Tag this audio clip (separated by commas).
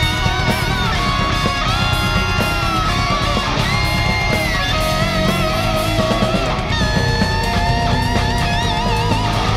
Rock music, Music, Heavy metal, Electric guitar, Guitar, Plucked string instrument, Musical instrument, playing electric guitar